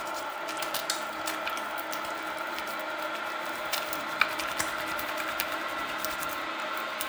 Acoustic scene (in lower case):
restroom